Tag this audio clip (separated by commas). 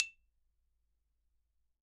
Musical instrument, Music, Mallet percussion, xylophone, Percussion